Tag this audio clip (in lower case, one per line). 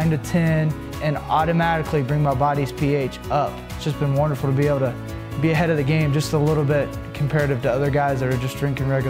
speech
music